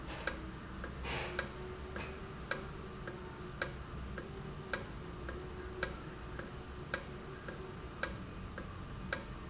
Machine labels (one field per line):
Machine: valve